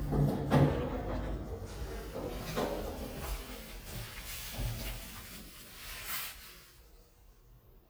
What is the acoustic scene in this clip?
elevator